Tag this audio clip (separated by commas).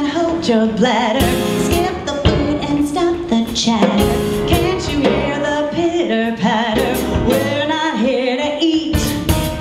Female singing, Music